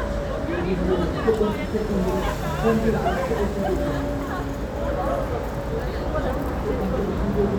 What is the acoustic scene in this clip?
street